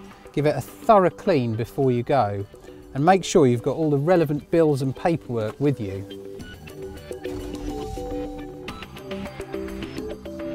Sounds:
music
speech

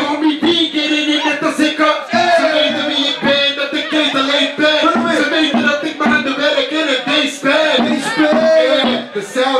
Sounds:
speech
music

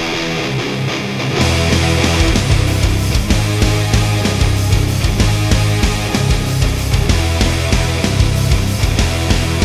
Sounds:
acoustic guitar
bass guitar
music
guitar
electric guitar
strum
musical instrument
plucked string instrument

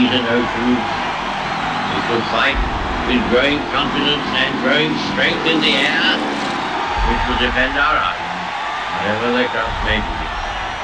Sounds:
man speaking
speech
narration

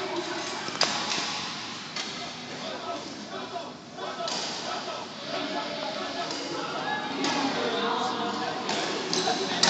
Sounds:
playing badminton

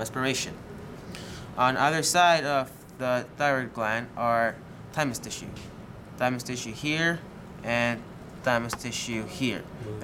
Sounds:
speech

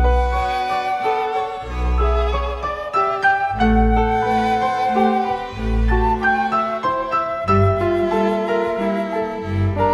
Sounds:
music
fiddle
bowed string instrument

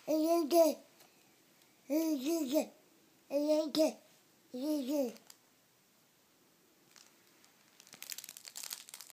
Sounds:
babbling
people babbling

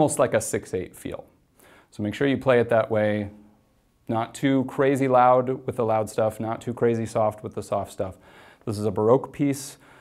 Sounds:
speech

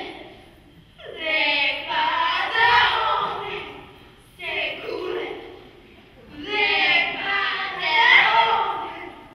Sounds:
speech

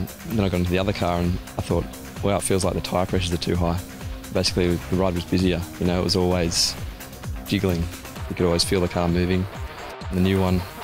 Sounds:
music
speech

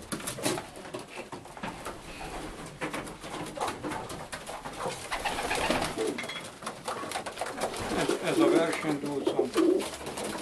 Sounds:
speech
inside a small room
pigeon

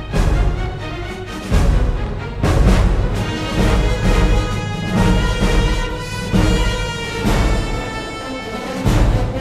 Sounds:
music

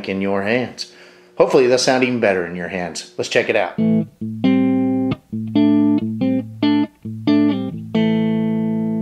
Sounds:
speech
distortion
music

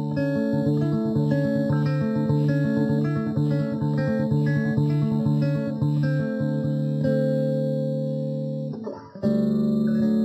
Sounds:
music
electronic tuner
playing bass guitar
musical instrument
plucked string instrument
guitar
bass guitar
electric guitar

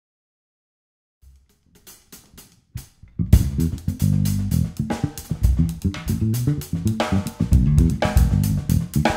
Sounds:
hi-hat
musical instrument
drum
drum kit
music
snare drum
bass drum

